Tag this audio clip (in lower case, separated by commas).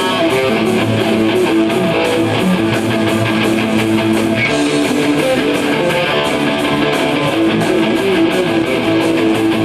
music, rock and roll